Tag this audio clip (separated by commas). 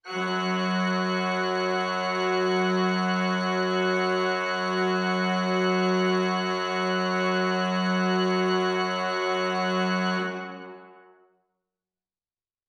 Organ, Musical instrument, Keyboard (musical), Music